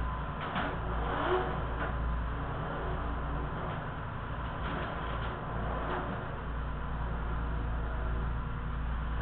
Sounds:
vehicle

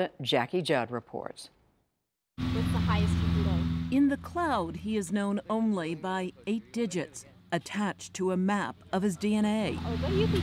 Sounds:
speech

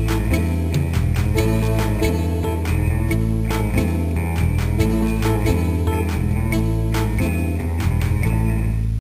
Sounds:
music
theme music

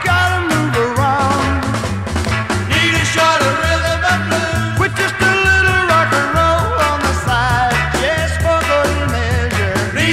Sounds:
ska
music
disco
reggae

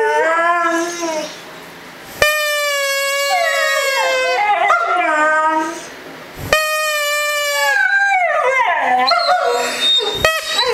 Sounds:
dog howling

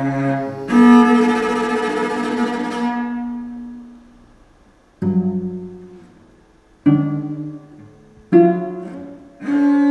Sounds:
bowed string instrument
musical instrument
cello
music
classical music

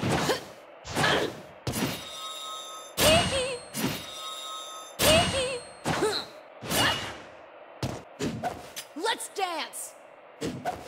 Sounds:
speech

